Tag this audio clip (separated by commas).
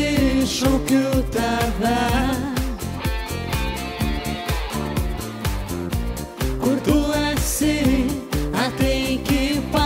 Music of Asia